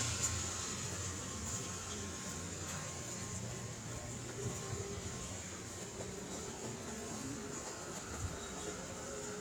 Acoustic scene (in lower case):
residential area